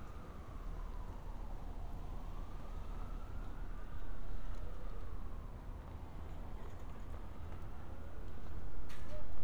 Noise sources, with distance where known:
siren, far

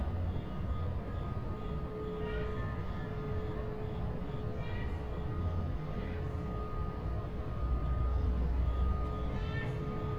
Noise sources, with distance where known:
reverse beeper, near
person or small group shouting, far

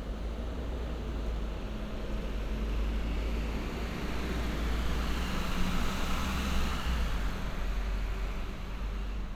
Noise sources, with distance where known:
engine of unclear size, near

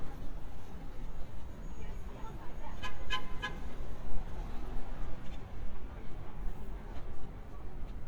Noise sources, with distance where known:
car horn, near
person or small group talking

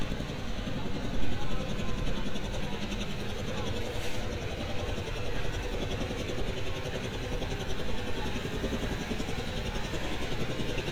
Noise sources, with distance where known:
jackhammer

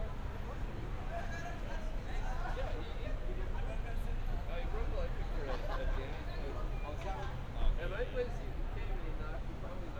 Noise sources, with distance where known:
person or small group talking

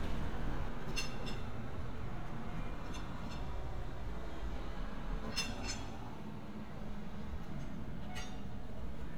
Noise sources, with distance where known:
background noise

